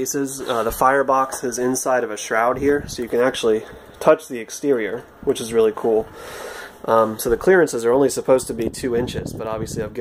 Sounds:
speech

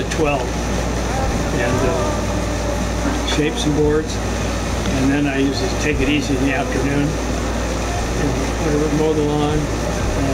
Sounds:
inside a small room, speech

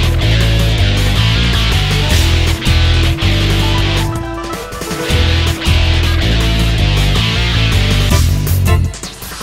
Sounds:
music

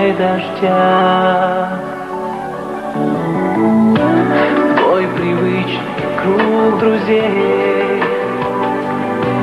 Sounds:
music

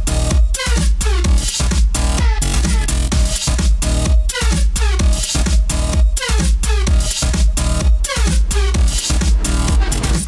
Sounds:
music

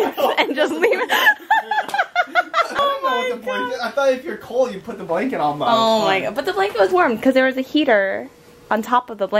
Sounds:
speech, chuckle, laughter

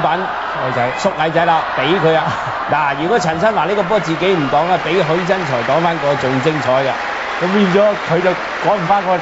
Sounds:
speech

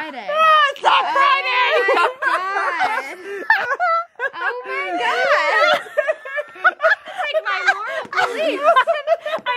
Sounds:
speech, inside a small room

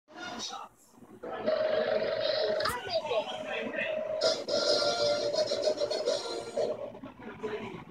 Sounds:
speech, music

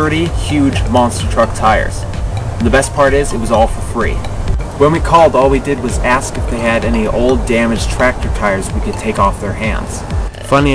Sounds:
speech, music

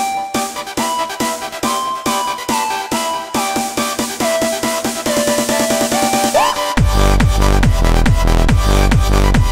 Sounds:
music, electronic music, techno

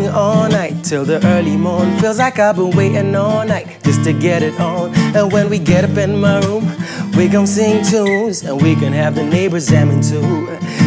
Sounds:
new-age music, funk, music, rhythm and blues

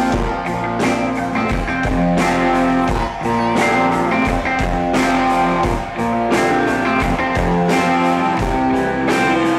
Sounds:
strum, acoustic guitar, speech, musical instrument, guitar, music, plucked string instrument

